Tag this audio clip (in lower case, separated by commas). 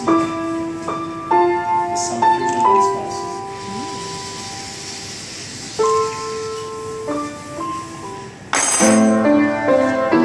inside a small room, speech, music